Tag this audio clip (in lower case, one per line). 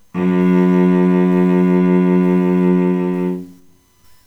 bowed string instrument
musical instrument
music